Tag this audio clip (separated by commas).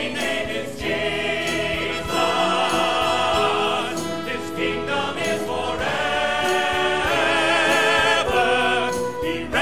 Singing, Choir, Music